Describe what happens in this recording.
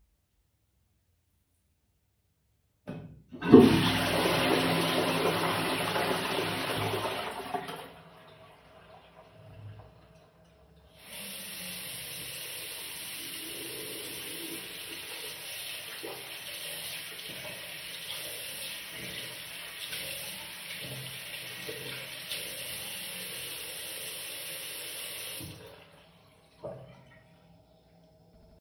I placed the phone near the toilet and sink area. I flushed the toilet and the flushing sound is clearly audible. Shortly afterward I briefly turned on the sink faucet. Both sounds occur in a realistic bathroom sequence.